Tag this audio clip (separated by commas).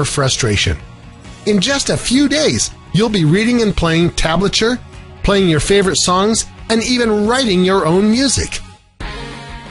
Speech, Musical instrument, Guitar, Music